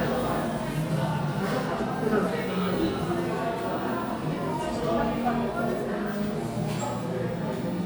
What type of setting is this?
crowded indoor space